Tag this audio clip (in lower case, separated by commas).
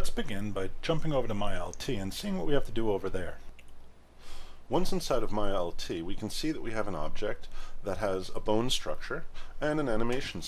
speech